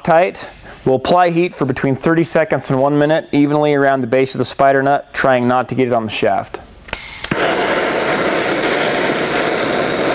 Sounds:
speech, fixed-wing aircraft

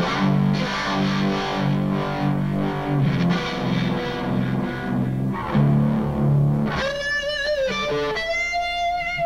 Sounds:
music

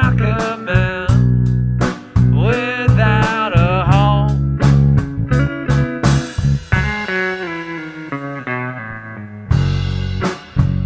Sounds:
music

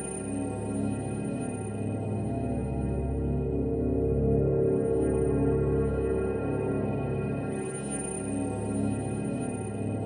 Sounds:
electronica, music, electronic music

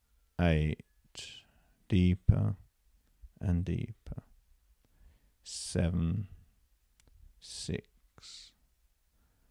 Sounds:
inside a small room, speech

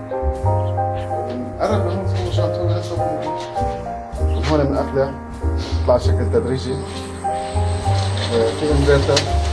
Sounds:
speech, music

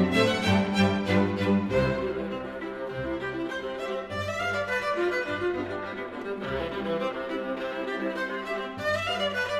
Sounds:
double bass, fiddle, cello, bowed string instrument

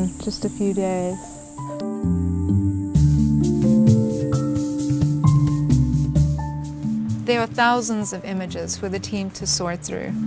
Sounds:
speech, music

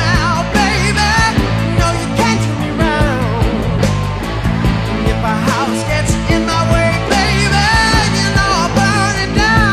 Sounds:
yell

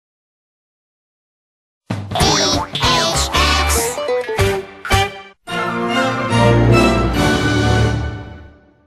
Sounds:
speech, music

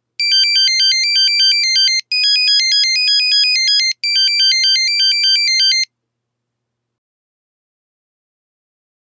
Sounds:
ringtone

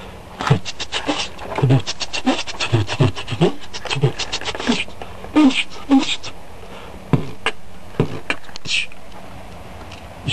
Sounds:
vocal music, beatboxing

